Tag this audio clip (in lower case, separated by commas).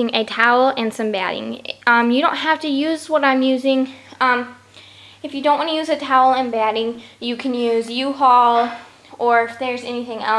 speech